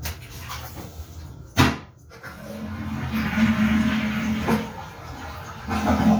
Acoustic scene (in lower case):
restroom